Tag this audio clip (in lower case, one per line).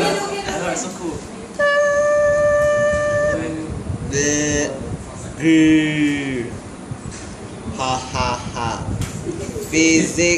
speech
hubbub